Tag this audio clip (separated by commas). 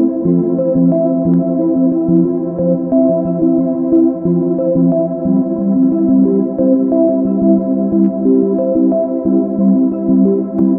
Music